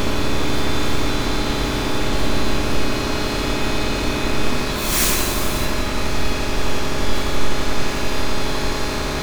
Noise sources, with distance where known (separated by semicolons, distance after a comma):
engine of unclear size, near